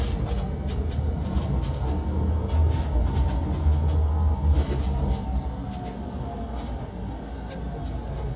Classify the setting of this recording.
subway train